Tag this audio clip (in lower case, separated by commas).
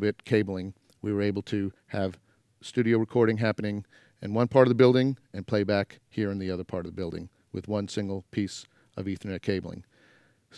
speech